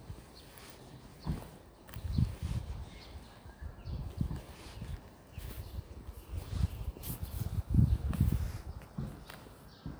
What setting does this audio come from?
park